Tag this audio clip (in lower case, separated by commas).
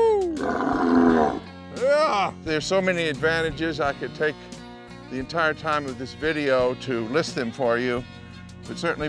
speech, music